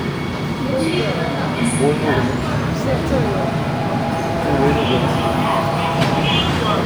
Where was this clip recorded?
in a subway station